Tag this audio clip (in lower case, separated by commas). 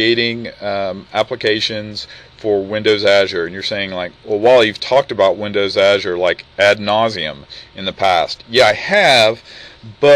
speech